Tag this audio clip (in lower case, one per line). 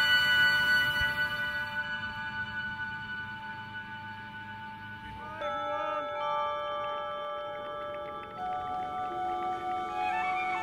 music